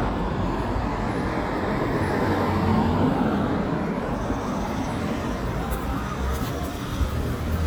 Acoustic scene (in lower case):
street